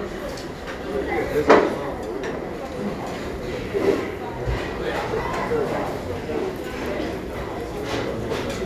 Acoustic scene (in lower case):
crowded indoor space